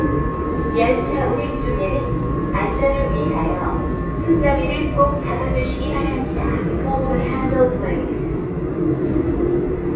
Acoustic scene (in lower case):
subway train